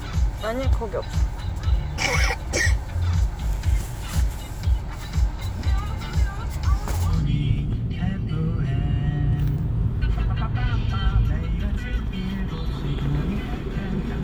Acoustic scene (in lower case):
car